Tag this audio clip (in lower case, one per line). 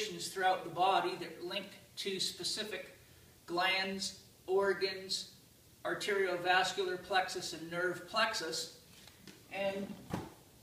speech